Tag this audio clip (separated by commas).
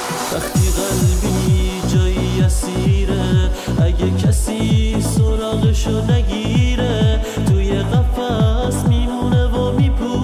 Music, Tender music